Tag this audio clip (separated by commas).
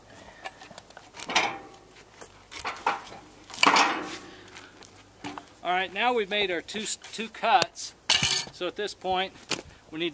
Speech